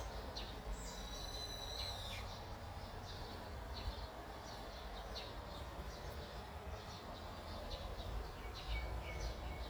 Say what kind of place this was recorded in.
park